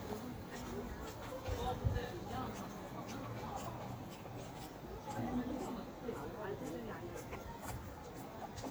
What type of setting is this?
park